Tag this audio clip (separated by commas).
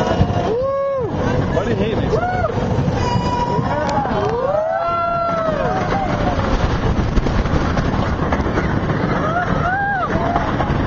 Speech